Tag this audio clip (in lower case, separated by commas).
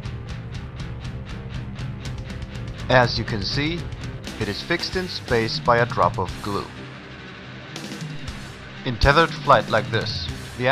speech, music